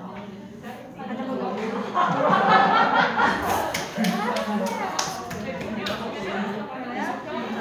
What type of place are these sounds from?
crowded indoor space